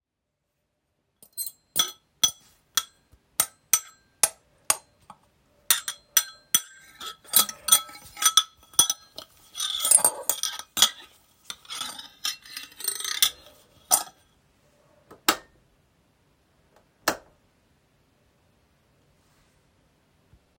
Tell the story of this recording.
I arranged my cutlery_dishes, then turned the light switch on and off